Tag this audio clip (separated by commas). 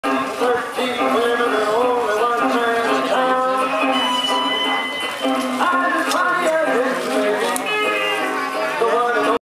Music, Speech